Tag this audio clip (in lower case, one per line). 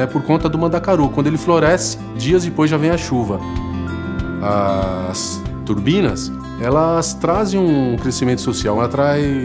speech
music